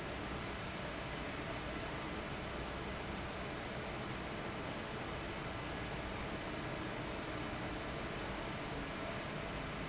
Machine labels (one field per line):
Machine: fan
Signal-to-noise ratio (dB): 0 dB